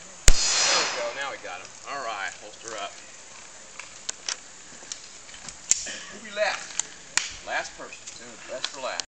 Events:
[0.00, 9.04] rustle
[0.22, 0.96] gunfire
[0.58, 1.69] music
[1.80, 2.94] music
[2.61, 2.71] generic impact sounds
[3.76, 3.90] generic impact sounds
[4.02, 4.12] generic impact sounds
[4.25, 4.35] generic impact sounds
[4.76, 4.96] generic impact sounds
[5.24, 5.51] generic impact sounds
[5.65, 6.11] generic impact sounds
[5.84, 6.63] music
[6.46, 6.58] generic impact sounds
[6.71, 6.88] generic impact sounds
[7.11, 7.23] generic impact sounds
[7.41, 7.97] music
[8.02, 8.18] generic impact sounds
[8.11, 8.99] music
[8.60, 8.74] generic impact sounds

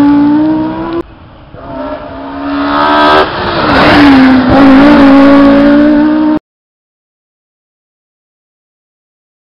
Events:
[0.00, 0.98] accelerating
[0.00, 6.38] auto racing
[0.24, 0.46] tick
[0.89, 0.98] tick
[1.51, 6.38] accelerating

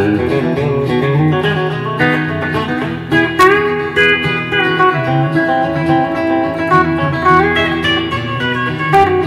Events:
[0.00, 9.25] music

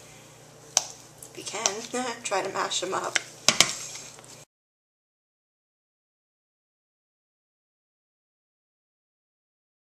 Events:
[0.00, 4.44] mechanisms
[0.68, 0.83] cutlery
[1.14, 1.30] generic impact sounds
[1.34, 3.12] woman speaking
[1.56, 1.73] cutlery
[2.34, 2.49] tick
[3.08, 3.21] cutlery
[3.42, 3.74] cutlery
[3.86, 4.28] generic impact sounds

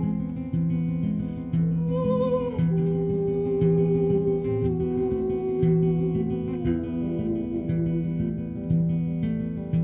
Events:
[0.00, 9.83] music

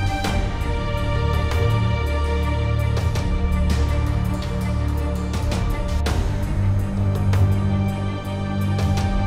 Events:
[0.01, 9.25] music

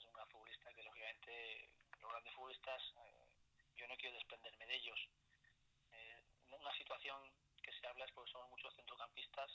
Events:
[0.01, 9.54] background noise
[0.03, 1.72] man speaking
[1.93, 3.37] man speaking
[3.68, 5.02] man speaking
[5.86, 6.21] man speaking
[6.37, 7.28] man speaking
[7.55, 9.54] man speaking

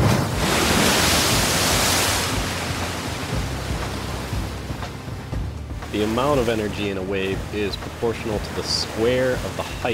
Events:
[0.00, 9.93] music
[0.00, 9.93] waves
[5.74, 9.93] man speaking

